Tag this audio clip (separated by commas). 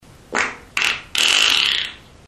Fart